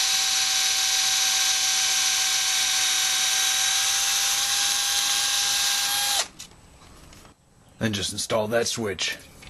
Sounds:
Speech, Drill

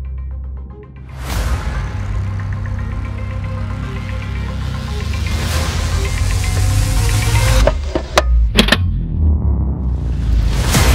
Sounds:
Music

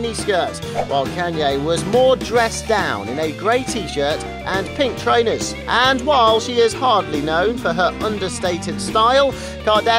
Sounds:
Music, Speech

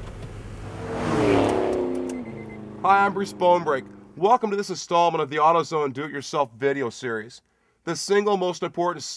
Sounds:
Vehicle, Car, Speech, Motor vehicle (road)

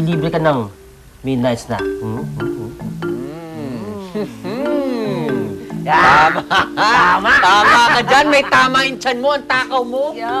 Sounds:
Speech, Music

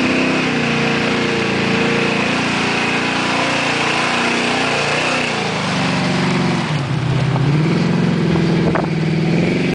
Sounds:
Car, Vehicle

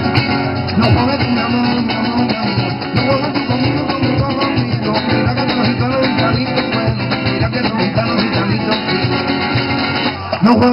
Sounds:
Singing, Music, Flamenco, Music of Latin America

